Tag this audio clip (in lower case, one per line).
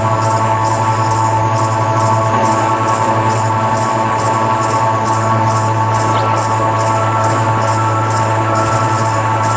music